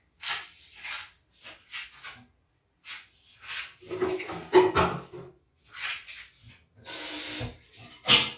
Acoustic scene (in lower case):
restroom